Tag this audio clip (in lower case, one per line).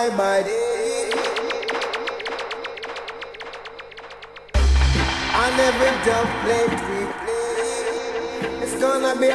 music